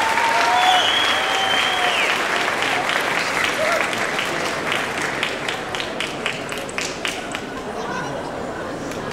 The people applauded with enthusiasm